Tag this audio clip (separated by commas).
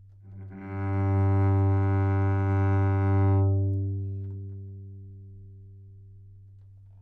Musical instrument, Music, Bowed string instrument